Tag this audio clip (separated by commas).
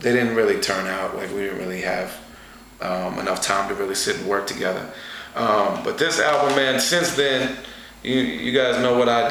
Speech